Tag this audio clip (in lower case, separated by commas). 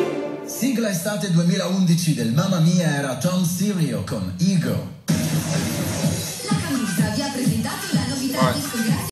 music, speech, radio